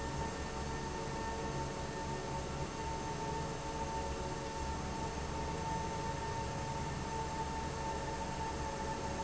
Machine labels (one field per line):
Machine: fan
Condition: abnormal